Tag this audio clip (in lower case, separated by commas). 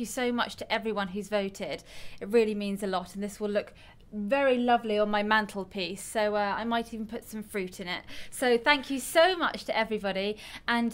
woman speaking, speech, monologue